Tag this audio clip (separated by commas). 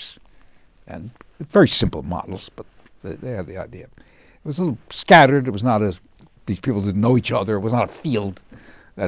Speech